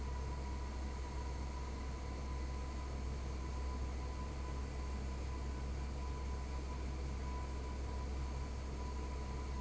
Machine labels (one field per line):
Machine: fan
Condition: abnormal